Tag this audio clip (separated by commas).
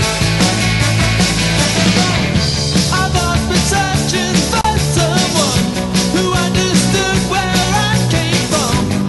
Music